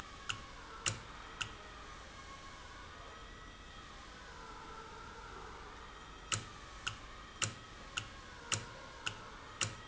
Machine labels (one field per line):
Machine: valve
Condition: normal